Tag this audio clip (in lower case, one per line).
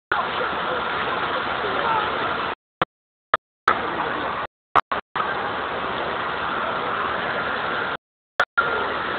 wind